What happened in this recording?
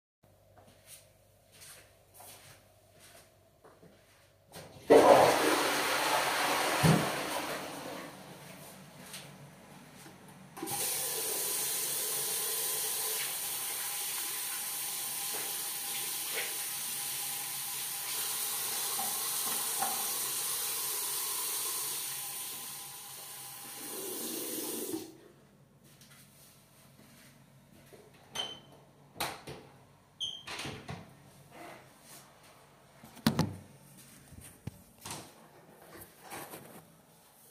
Flushing the toilet then washing my hands with water and soap and open the lock and door and go outside